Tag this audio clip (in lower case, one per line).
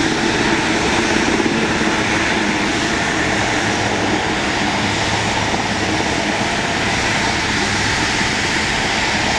vehicle
aircraft
airplane